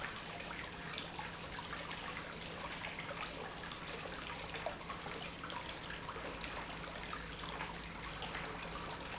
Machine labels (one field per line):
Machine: pump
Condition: normal